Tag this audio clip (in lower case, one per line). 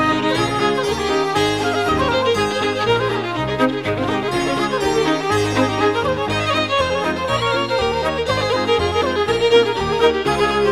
saxophone